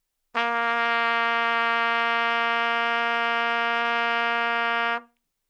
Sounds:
music
trumpet
brass instrument
musical instrument

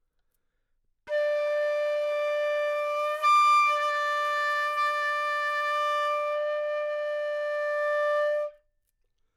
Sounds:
musical instrument
wind instrument
music

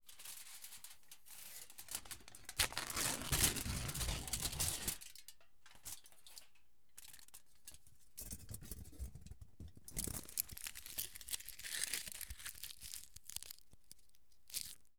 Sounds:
tearing
crinkling

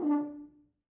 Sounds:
music
musical instrument
brass instrument

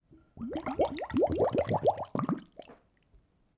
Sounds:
liquid
water

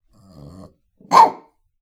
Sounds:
dog
pets
animal
bark

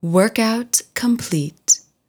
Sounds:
human voice
female speech
speech

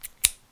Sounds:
home sounds
scissors

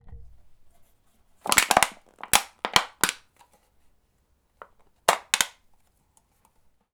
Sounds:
crushing

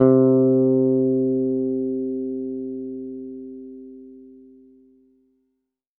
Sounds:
bass guitar
plucked string instrument
guitar
musical instrument
music

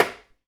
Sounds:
tap

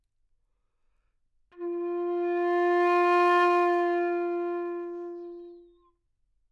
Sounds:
wind instrument
musical instrument
music

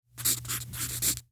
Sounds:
writing
home sounds

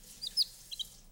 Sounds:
wild animals
chirp
bird song
animal
bird

